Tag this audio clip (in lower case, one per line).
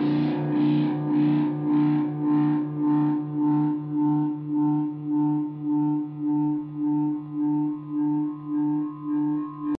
distortion
guitar
musical instrument
music
effects unit